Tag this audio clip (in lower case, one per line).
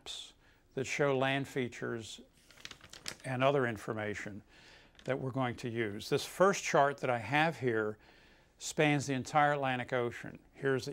speech